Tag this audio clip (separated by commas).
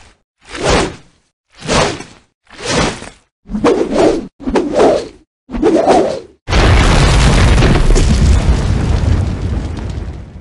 Sound effect